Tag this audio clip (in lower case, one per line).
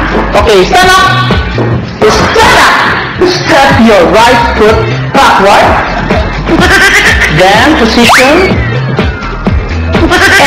music
speech